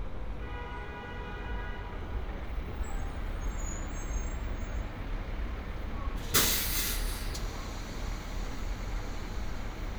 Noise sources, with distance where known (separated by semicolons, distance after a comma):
engine of unclear size; unidentified impact machinery; car horn, far